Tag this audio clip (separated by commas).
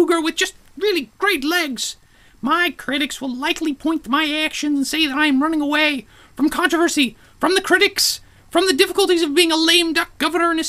Speech, monologue